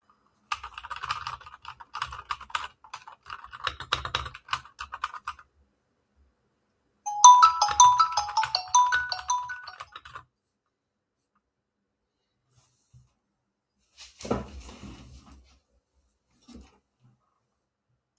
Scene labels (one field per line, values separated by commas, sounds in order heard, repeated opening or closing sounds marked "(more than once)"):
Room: bedroom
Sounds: keyboard typing, phone ringing